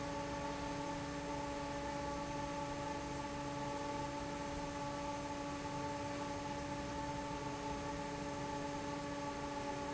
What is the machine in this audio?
fan